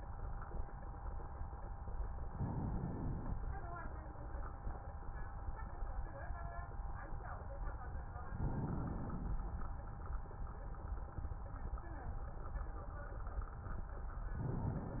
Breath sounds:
2.26-3.31 s: inhalation
8.30-9.35 s: inhalation
14.33-15.00 s: inhalation

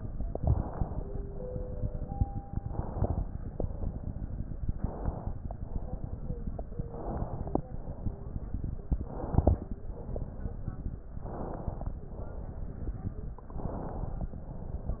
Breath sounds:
0.30-1.17 s: crackles
0.30-1.20 s: inhalation
1.20-2.63 s: exhalation
1.20-2.63 s: crackles
2.67-3.44 s: inhalation
2.67-3.44 s: crackles
3.46-4.60 s: exhalation
3.46-4.60 s: crackles
4.68-5.55 s: inhalation
4.68-5.55 s: crackles
5.59-6.80 s: exhalation
5.59-6.80 s: crackles
6.83-7.66 s: inhalation
6.83-7.66 s: crackles
7.70-8.97 s: exhalation
7.70-8.97 s: crackles
9.01-9.71 s: inhalation
9.01-9.71 s: crackles
9.71-11.20 s: exhalation
9.73-11.20 s: crackles
11.24-11.94 s: inhalation
11.24-11.94 s: crackles
11.98-13.53 s: exhalation
11.98-13.53 s: crackles
13.59-14.30 s: inhalation
13.59-14.30 s: crackles
14.35-15.00 s: exhalation

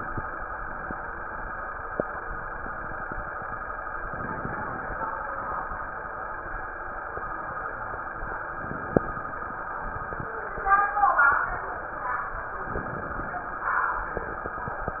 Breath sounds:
4.04-5.11 s: inhalation
8.54-9.60 s: inhalation
12.68-13.74 s: inhalation

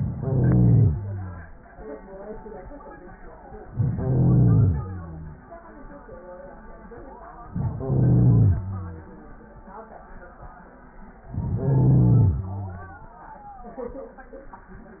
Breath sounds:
0.00-1.57 s: inhalation
3.69-5.44 s: inhalation
7.50-9.16 s: inhalation
11.24-13.17 s: inhalation

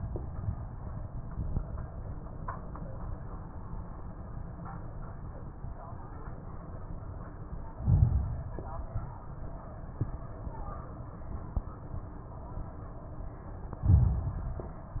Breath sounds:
7.82-8.90 s: inhalation
13.85-14.93 s: inhalation

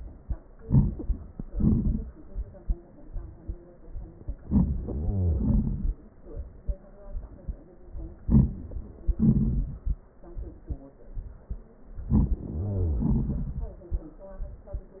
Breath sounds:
0.58-1.23 s: inhalation
1.50-2.09 s: exhalation
4.52-4.74 s: inhalation
4.82-5.47 s: wheeze
5.38-5.96 s: exhalation
8.24-8.60 s: inhalation
9.17-9.97 s: exhalation
12.12-12.42 s: inhalation
12.46-13.14 s: wheeze
13.01-13.78 s: exhalation

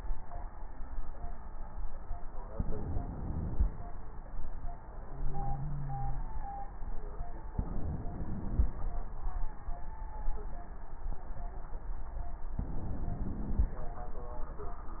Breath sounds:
2.54-3.69 s: inhalation
7.57-8.72 s: inhalation
12.62-13.77 s: inhalation

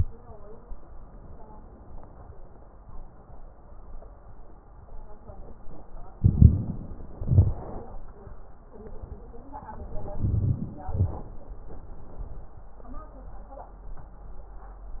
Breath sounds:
6.18-6.80 s: inhalation
6.18-6.80 s: crackles
7.19-7.62 s: exhalation
10.18-10.71 s: inhalation
10.88-11.41 s: exhalation

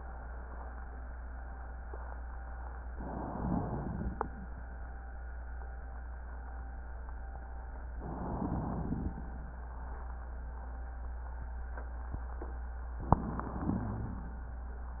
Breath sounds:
2.88-4.48 s: inhalation
7.93-9.20 s: inhalation
13.06-14.37 s: inhalation

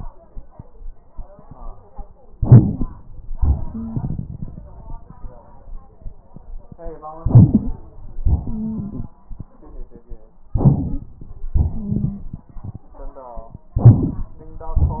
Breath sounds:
2.33-3.06 s: inhalation
2.33-3.06 s: crackles
3.36-5.39 s: exhalation
3.36-5.39 s: crackles
3.71-3.99 s: wheeze
7.20-7.84 s: inhalation
7.20-7.84 s: crackles
8.27-9.13 s: exhalation
8.44-9.06 s: wheeze
10.54-11.11 s: inhalation
11.57-12.86 s: exhalation
11.73-12.21 s: wheeze
13.74-14.31 s: inhalation
13.74-14.31 s: crackles

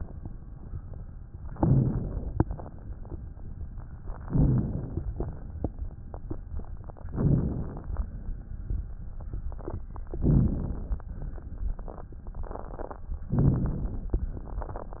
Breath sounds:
1.52-2.38 s: inhalation
2.37-3.06 s: exhalation
4.16-4.90 s: inhalation
4.92-5.90 s: exhalation
7.05-7.88 s: inhalation
7.87-8.92 s: exhalation
10.12-11.08 s: inhalation
11.08-12.04 s: exhalation
13.27-14.00 s: inhalation

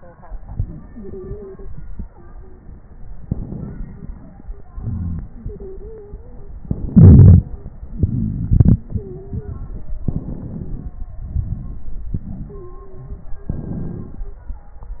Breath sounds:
0.94-1.63 s: stridor
2.07-2.75 s: stridor
3.20-4.70 s: inhalation
3.20-4.70 s: crackles
4.68-6.61 s: exhalation
5.43-6.54 s: stridor
6.61-7.85 s: inhalation
6.61-7.85 s: crackles
7.85-10.05 s: exhalation
8.94-9.59 s: stridor
10.04-11.21 s: inhalation
10.04-11.21 s: crackles
11.22-12.15 s: exhalation
11.22-12.15 s: crackles
12.16-13.49 s: inhalation
12.48-14.44 s: stridor
13.48-14.89 s: exhalation

